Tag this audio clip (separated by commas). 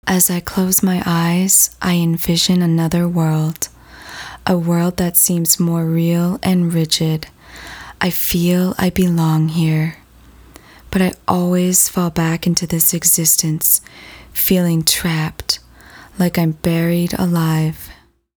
Human voice, woman speaking, Speech